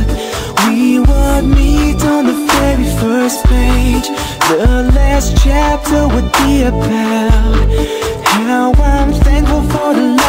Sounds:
Rhythm and blues

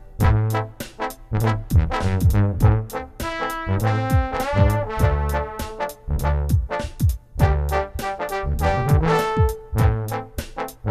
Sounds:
Musical instrument, Brass instrument, Jazz, Music

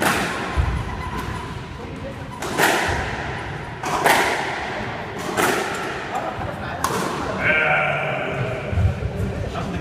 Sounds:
playing squash

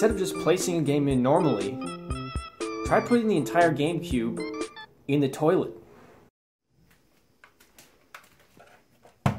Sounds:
Music, Speech

